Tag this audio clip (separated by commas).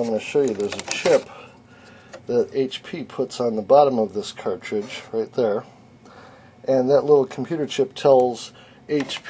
Speech